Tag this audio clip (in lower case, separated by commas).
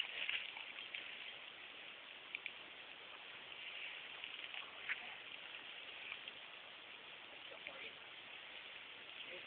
speech